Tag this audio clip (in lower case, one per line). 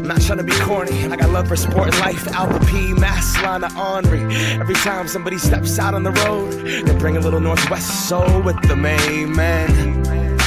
music